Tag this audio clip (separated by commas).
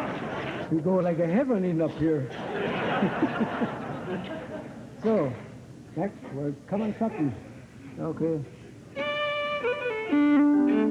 Speech, Music, fiddle, Musical instrument